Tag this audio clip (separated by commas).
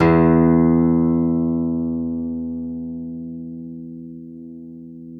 Music, Musical instrument, Acoustic guitar, Guitar, Plucked string instrument